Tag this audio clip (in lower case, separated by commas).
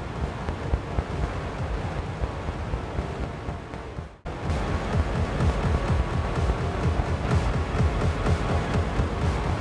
music